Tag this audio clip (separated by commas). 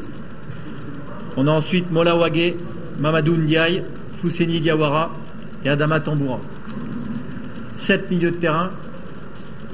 Speech